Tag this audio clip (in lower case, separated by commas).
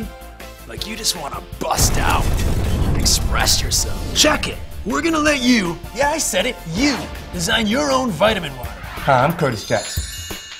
speech, music